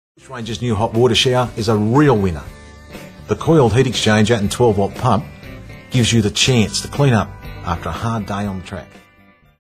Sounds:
Speech, Music

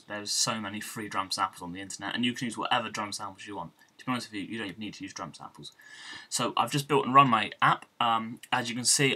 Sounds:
Speech

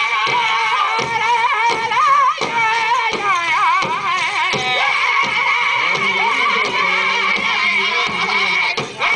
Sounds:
Music, Speech

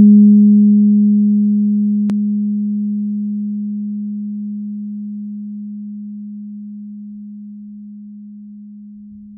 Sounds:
playing tuning fork

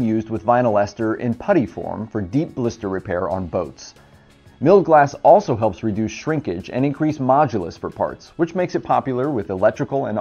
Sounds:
Speech, Music

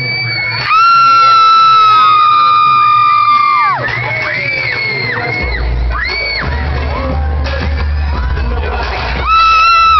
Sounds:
Cheering, Crowd

